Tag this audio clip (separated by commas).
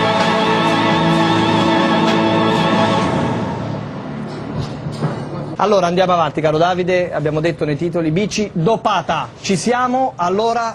Music, Speech